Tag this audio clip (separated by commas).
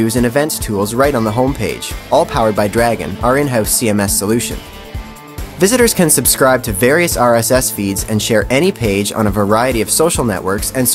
Speech, Music